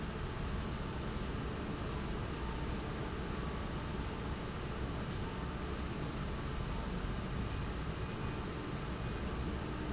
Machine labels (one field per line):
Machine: fan